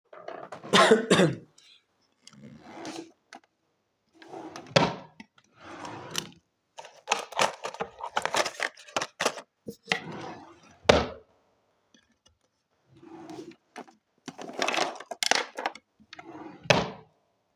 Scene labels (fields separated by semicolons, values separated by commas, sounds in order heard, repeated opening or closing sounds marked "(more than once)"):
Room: bedroom; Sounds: wardrobe or drawer (more than once)